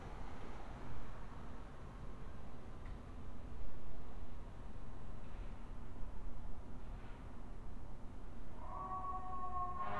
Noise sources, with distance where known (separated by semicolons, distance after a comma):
background noise